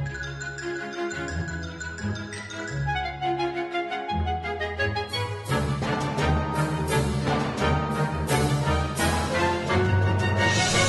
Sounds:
Music

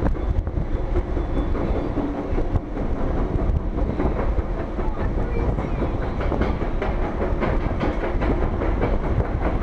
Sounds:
roller coaster running

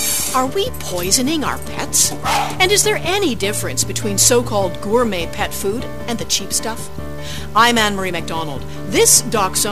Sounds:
Music, Speech

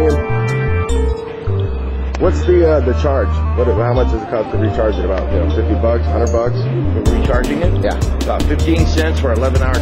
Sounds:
Music, Speech

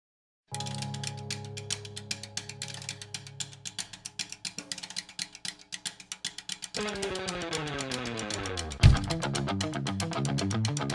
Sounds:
Drum, Musical instrument, Music

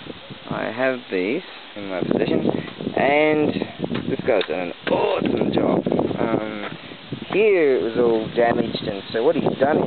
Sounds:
outside, rural or natural, Speech

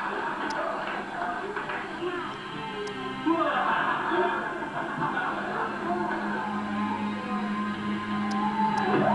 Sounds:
Speech, Music

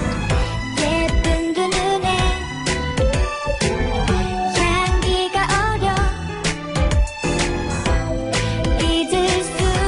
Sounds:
Music

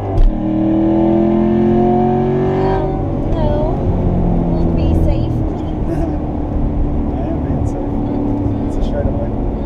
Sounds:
Speech

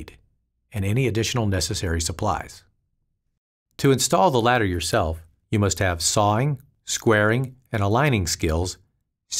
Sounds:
Speech

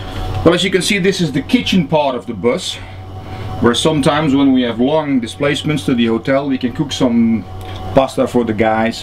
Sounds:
Speech

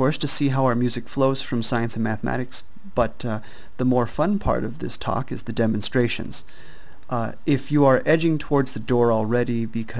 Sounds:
Speech

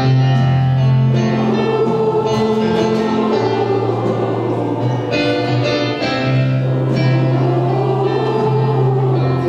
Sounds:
Singing, Crowd, Choir, Christian music, Music, Gospel music

